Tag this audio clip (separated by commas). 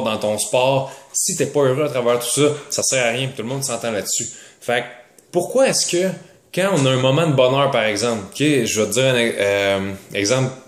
Speech